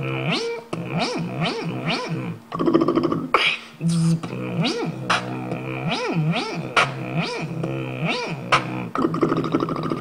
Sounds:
beatboxing, inside a small room

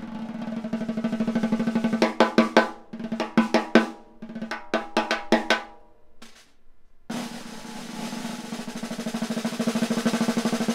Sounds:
drum, music, drum kit, musical instrument

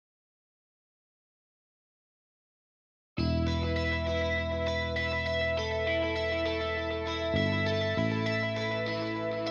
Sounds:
music

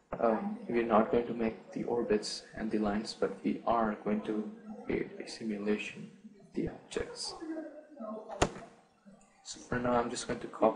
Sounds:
speech

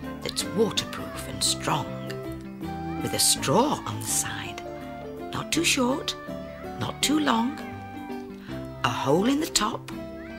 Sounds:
speech, music

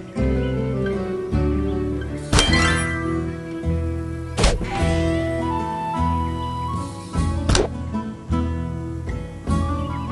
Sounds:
harp

